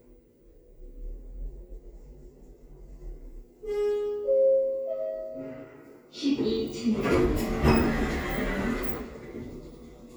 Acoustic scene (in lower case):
elevator